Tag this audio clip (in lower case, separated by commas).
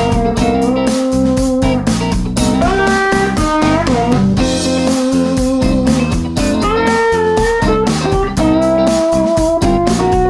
electric guitar, guitar, musical instrument, music, plucked string instrument